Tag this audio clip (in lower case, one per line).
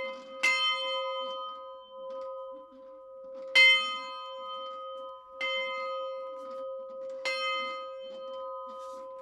bell